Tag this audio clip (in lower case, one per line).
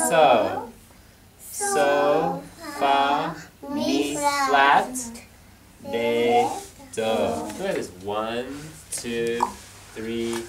speech